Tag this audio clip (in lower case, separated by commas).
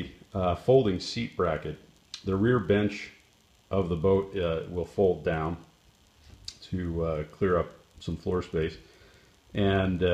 speech